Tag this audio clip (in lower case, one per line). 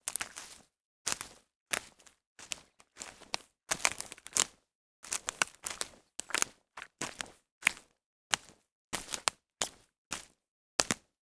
crack